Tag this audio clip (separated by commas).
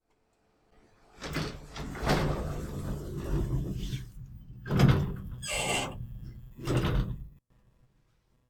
Sliding door, Door, Squeak, Domestic sounds